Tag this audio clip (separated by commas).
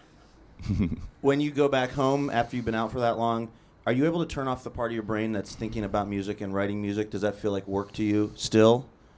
Speech